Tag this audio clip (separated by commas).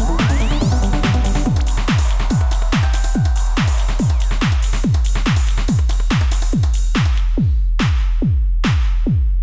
Sampler, Music, Drum machine, Synthesizer